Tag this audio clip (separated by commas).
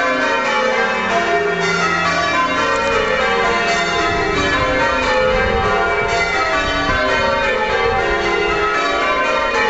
church bell ringing